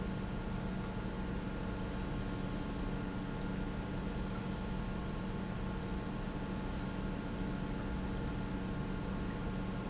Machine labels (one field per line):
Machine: pump